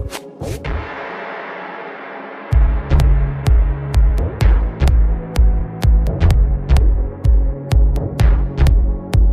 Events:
0.0s-0.2s: sound effect
0.0s-9.3s: music
0.3s-0.7s: sound effect

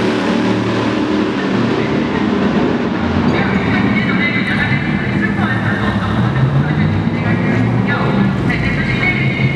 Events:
0.0s-9.5s: accelerating
0.0s-9.5s: auto racing
0.0s-9.5s: wind
3.3s-9.5s: male speech

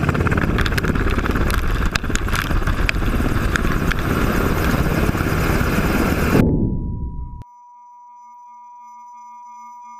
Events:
0.0s-6.7s: helicopter
6.7s-9.9s: tuning fork

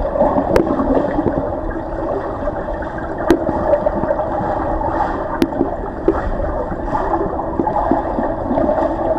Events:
0.0s-9.1s: gurgling
0.0s-9.1s: mechanisms
6.0s-6.1s: tick
8.4s-9.1s: water

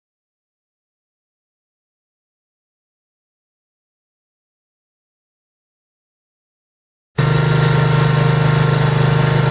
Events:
7.1s-9.5s: mechanisms

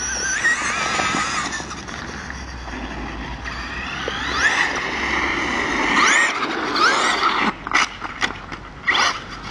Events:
0.0s-9.5s: whir
0.0s-9.5s: wind
7.7s-7.8s: generic impact sounds
8.0s-8.3s: generic impact sounds
8.4s-8.6s: generic impact sounds

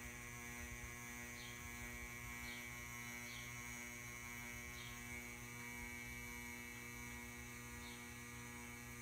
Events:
0.0s-9.0s: mechanical fan
1.3s-1.6s: tweet
2.4s-2.7s: tweet
3.2s-3.5s: tweet
4.7s-5.0s: tweet
7.8s-8.1s: tweet

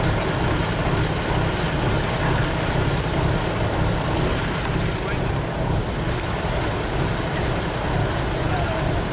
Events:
0.0s-9.1s: roadway noise
1.9s-2.0s: generic impact sounds
3.9s-4.0s: generic impact sounds
4.6s-5.1s: generic impact sounds
5.0s-5.2s: human voice
6.0s-6.3s: generic impact sounds
8.5s-8.8s: human voice

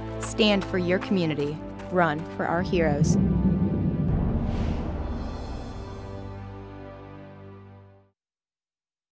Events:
0.0s-8.1s: music
1.9s-3.1s: female speech
2.1s-2.2s: footsteps
4.3s-4.9s: sound effect

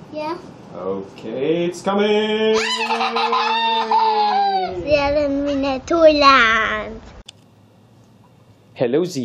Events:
0.0s-0.4s: kid speaking
0.0s-9.2s: conversation
0.0s-9.2s: mechanisms
0.7s-4.8s: male speech
2.5s-4.7s: laughter
4.7s-5.4s: wind noise (microphone)
4.7s-7.0s: kid speaking
5.3s-5.6s: human voice
5.6s-6.4s: wind noise (microphone)
7.2s-7.5s: generic impact sounds
7.9s-8.1s: generic impact sounds
8.2s-8.4s: generic impact sounds
8.7s-9.2s: male speech

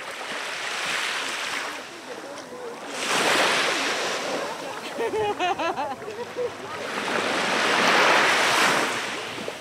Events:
0.0s-9.6s: waves
0.0s-9.6s: wind
1.7s-2.9s: speech
4.8s-6.5s: laughter
5.1s-5.4s: wind noise (microphone)
6.6s-6.9s: human voice

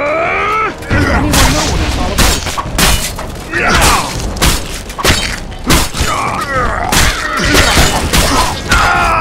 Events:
0.0s-0.7s: grunt
0.0s-9.2s: music
0.0s-9.2s: video game sound
0.8s-1.1s: sound effect
0.8s-2.2s: male speech
1.3s-1.7s: sound effect
2.1s-2.6s: sound effect
2.8s-3.3s: sound effect
3.5s-4.1s: male speech
3.5s-4.3s: sound effect
4.4s-4.9s: sound effect
5.0s-5.5s: sound effect
5.6s-6.7s: sound effect
6.0s-7.0s: male speech
6.9s-9.2s: sound effect
7.2s-7.7s: grunt
8.6s-9.2s: grunt

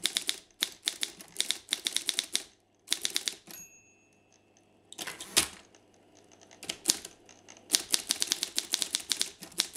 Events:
0.0s-0.4s: typewriter
0.0s-9.7s: background noise
0.6s-2.5s: typewriter
2.8s-3.3s: typewriter
3.5s-4.7s: typewriter
4.9s-5.5s: typewriter
5.7s-7.1s: typewriter
7.2s-7.6s: typewriter
7.7s-9.7s: typewriter

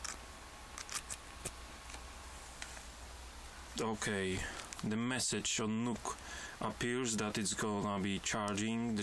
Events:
0.0s-0.1s: generic impact sounds
0.0s-9.0s: mechanisms
0.7s-1.0s: generic impact sounds
1.1s-1.1s: generic impact sounds
1.4s-1.5s: generic impact sounds
1.8s-1.9s: generic impact sounds
2.6s-2.6s: clicking
2.6s-2.9s: surface contact
3.7s-3.8s: human sounds
3.7s-4.4s: male speech
4.4s-4.8s: breathing
4.5s-4.6s: generic impact sounds
4.7s-4.8s: generic impact sounds
4.8s-6.1s: male speech
6.1s-6.6s: breathing
6.6s-9.0s: male speech

